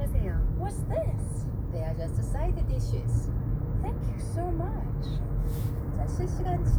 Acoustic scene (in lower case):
car